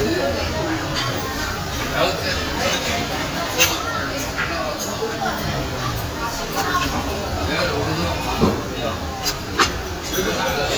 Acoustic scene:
crowded indoor space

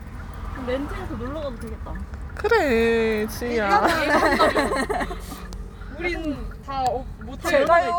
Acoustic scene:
car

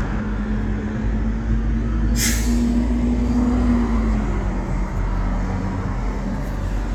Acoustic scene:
residential area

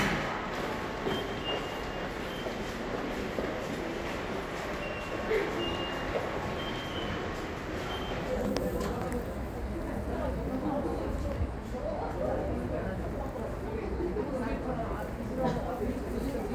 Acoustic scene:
subway station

